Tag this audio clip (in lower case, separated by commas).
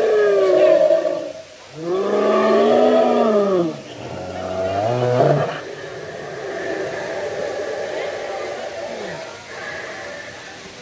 dinosaurs bellowing